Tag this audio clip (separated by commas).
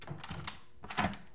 Door, home sounds